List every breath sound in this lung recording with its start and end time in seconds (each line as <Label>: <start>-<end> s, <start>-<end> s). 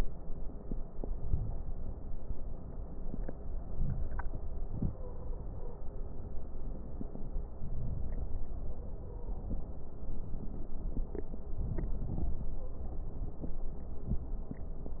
Inhalation: 0.99-1.96 s, 3.39-4.44 s, 7.25-9.06 s, 11.43-12.86 s
Stridor: 4.65-6.08 s, 8.56-9.60 s, 12.59-12.98 s
Crackles: 0.99-1.96 s, 3.39-4.44 s, 11.43-12.86 s